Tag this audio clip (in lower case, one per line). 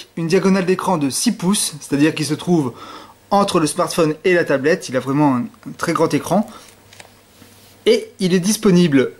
speech